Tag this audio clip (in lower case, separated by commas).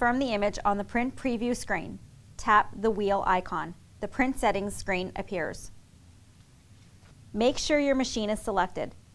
speech